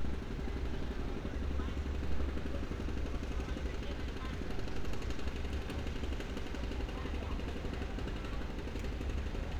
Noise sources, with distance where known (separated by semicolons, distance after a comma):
unidentified impact machinery, far; person or small group talking, far